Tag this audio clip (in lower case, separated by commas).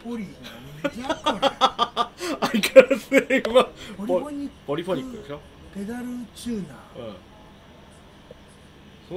speech